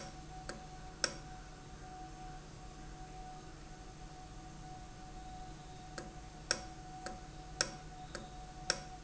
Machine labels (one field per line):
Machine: valve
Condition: normal